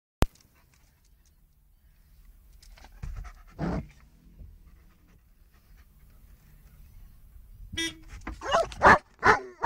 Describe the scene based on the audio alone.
A dog pants, a horn blows, and the dog barks